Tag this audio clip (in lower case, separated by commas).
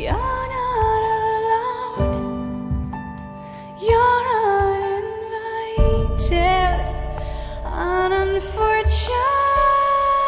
music, song